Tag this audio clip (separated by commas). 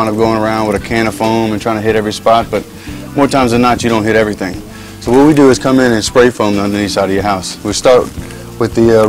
Spray, Speech, Music